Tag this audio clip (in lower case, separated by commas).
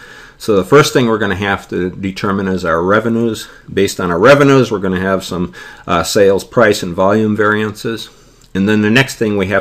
speech